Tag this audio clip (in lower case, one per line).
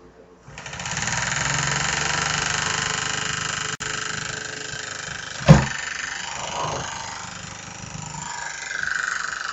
engine